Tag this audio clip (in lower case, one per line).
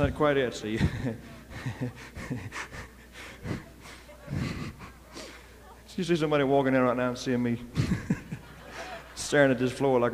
speech